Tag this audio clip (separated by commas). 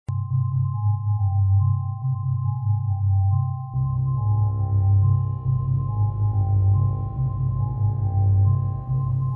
Speech, Music